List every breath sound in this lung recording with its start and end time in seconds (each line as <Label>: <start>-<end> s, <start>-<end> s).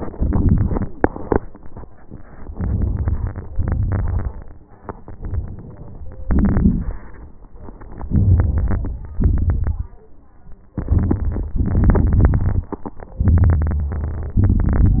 Inhalation: 0.13-0.86 s, 2.54-3.58 s, 6.27-7.17 s, 8.09-9.17 s, 10.75-11.59 s, 13.20-14.39 s
Exhalation: 0.89-1.42 s, 3.61-4.51 s, 7.18-7.80 s, 9.20-9.95 s, 11.61-12.68 s, 14.39-15.00 s
Crackles: 0.09-0.84 s, 6.23-7.18 s, 8.09-9.15 s, 11.61-12.68 s, 13.18-14.38 s, 14.40-15.00 s